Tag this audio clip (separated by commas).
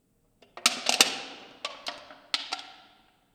Crushing